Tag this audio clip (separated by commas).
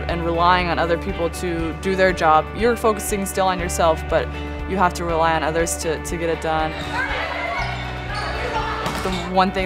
Speech, Music